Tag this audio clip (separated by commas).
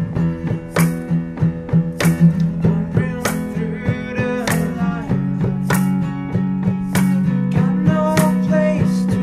Music